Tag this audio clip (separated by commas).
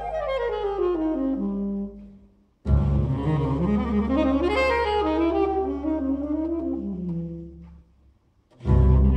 Musical instrument, Saxophone, Music, Double bass